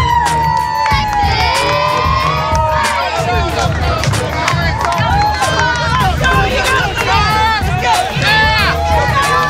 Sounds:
Speech, Music

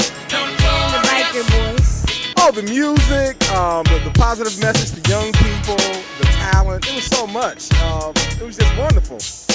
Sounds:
Reggae

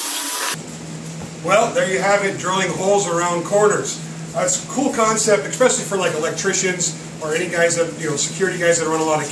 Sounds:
Drill, Speech

